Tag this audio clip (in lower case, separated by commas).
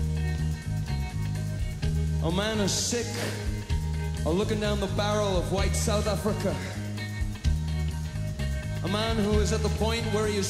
music, male speech, narration, speech